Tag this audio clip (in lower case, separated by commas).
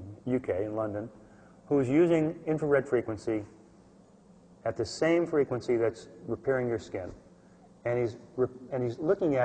speech